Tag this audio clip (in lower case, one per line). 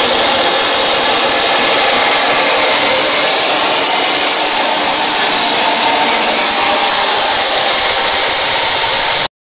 engine
vehicle